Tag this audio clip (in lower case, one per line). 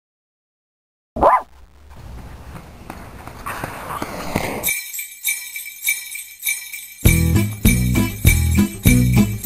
tinkle